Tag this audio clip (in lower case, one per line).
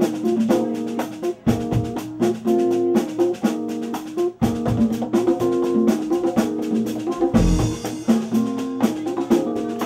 drum
musical instrument
drum kit
bass drum
speech
music